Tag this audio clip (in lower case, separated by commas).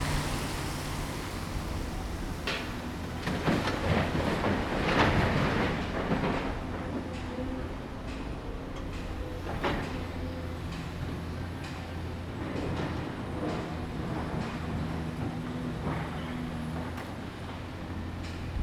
hammer, tools